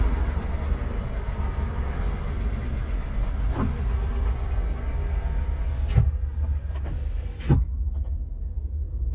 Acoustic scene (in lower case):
car